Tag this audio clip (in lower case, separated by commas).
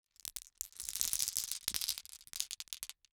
glass